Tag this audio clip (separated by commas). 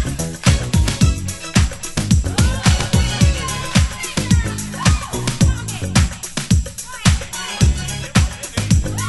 Disco